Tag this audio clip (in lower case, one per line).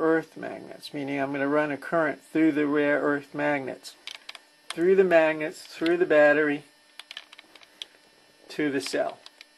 tap
speech